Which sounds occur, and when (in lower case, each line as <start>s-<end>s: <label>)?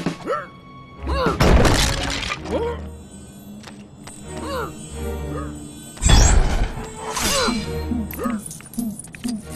0.0s-0.3s: sound effect
0.0s-9.5s: music
0.0s-9.5s: video game sound
0.2s-0.5s: human voice
1.0s-1.3s: human voice
1.2s-2.9s: sound effect
2.4s-2.8s: human voice
3.6s-3.9s: generic impact sounds
4.0s-4.1s: generic impact sounds
4.3s-4.4s: generic impact sounds
4.4s-4.7s: human voice
5.3s-5.5s: human voice
5.9s-6.8s: sound effect
7.1s-7.7s: sound effect
7.2s-7.5s: human voice
8.1s-8.9s: sound effect
8.1s-8.4s: human voice
9.0s-9.4s: sound effect
9.5s-9.5s: sound effect